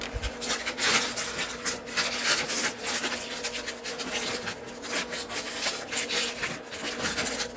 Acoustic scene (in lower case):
kitchen